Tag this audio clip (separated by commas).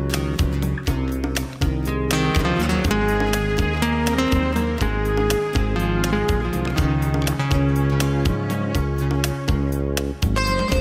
Music